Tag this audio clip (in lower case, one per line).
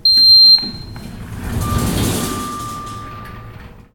sliding door
domestic sounds
door